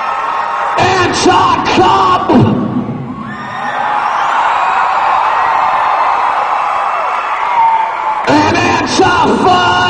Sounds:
speech, inside a large room or hall

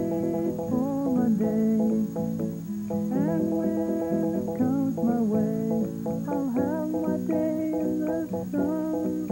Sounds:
female singing, music

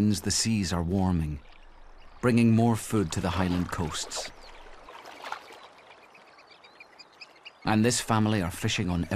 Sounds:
otter growling

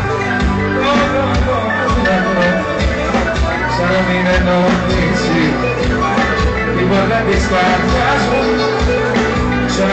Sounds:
music, rhythm and blues

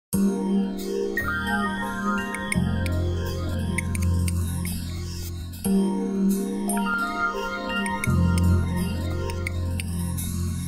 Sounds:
music, synthesizer

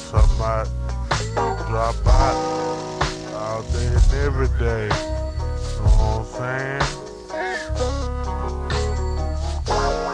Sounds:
music

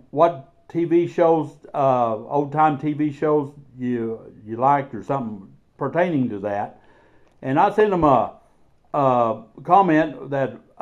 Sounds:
speech

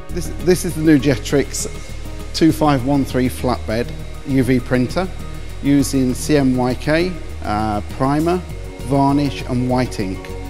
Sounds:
speech, music

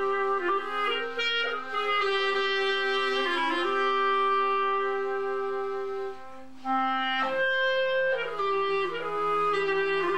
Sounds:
playing clarinet, pizzicato, clarinet, cello

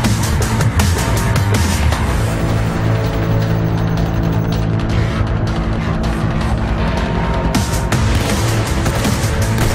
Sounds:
music

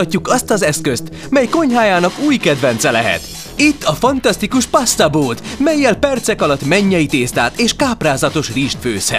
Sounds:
speech, music

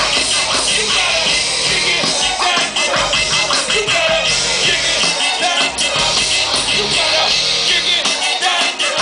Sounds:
dance music, music, pop music

